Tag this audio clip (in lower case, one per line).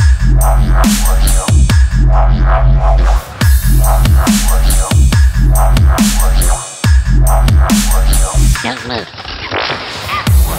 music
sampler